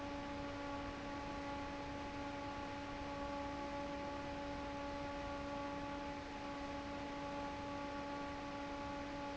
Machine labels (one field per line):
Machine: fan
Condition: normal